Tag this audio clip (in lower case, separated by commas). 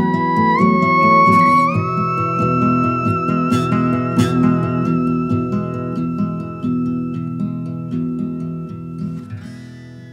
playing theremin